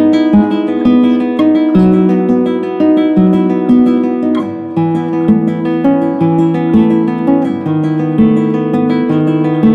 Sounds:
music
plucked string instrument
musical instrument
strum
guitar
electric guitar

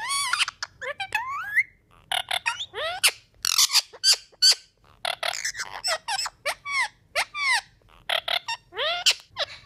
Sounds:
parrot talking

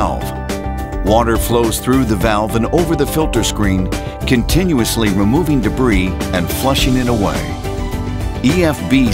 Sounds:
music
speech

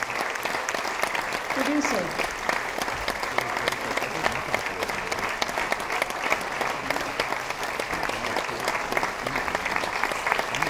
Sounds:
speech

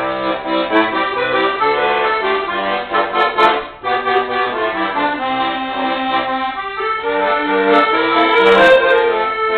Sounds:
music
musical instrument
accordion
playing accordion

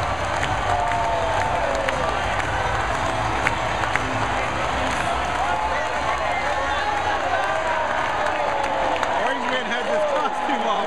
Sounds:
speech

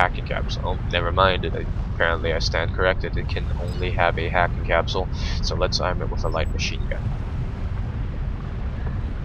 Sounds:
speech

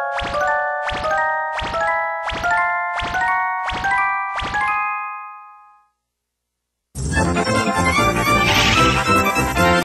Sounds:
soundtrack music
music

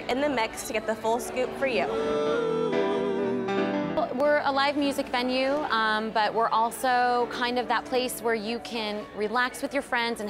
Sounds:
music
speech

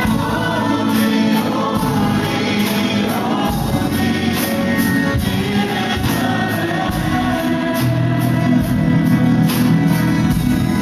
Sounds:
independent music
music

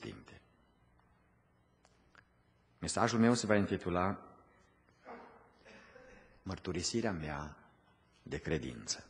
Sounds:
speech

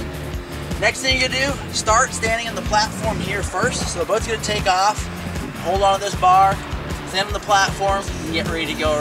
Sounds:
vehicle
speech
music
speedboat

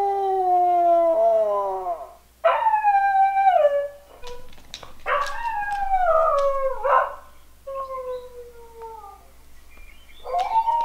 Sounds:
dog howling

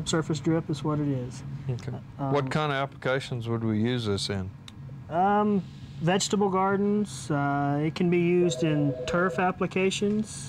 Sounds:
speech

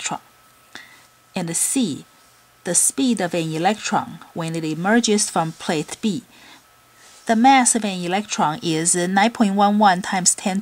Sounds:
speech

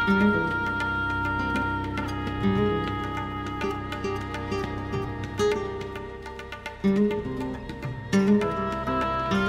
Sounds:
bowed string instrument

